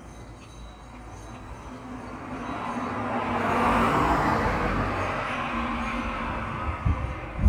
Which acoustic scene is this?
street